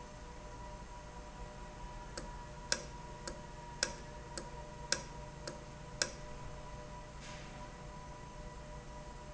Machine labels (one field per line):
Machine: valve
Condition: normal